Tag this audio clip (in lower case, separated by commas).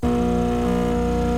printer, mechanisms